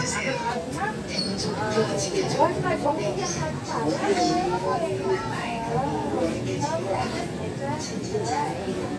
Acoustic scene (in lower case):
crowded indoor space